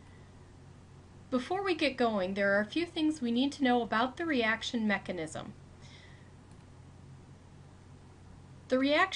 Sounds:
speech

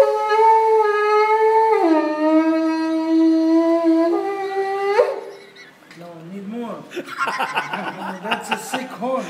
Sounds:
playing shofar

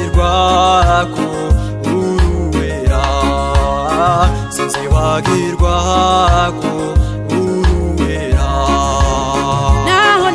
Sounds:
music, gospel music

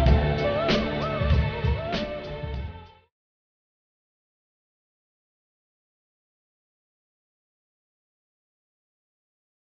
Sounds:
music

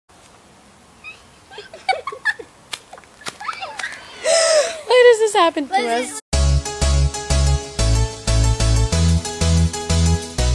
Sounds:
speech, music, outside, rural or natural

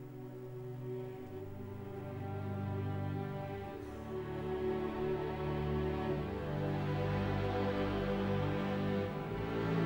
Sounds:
music

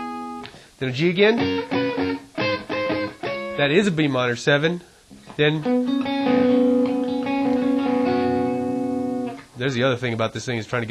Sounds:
musical instrument, guitar, plucked string instrument, speech, music

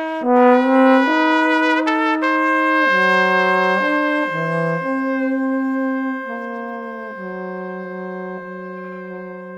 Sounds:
music, trumpet

